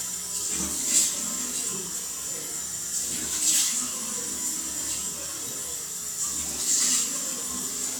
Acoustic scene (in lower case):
restroom